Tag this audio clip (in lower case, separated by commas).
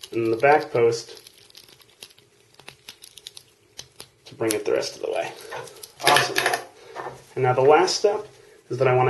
inside a small room, speech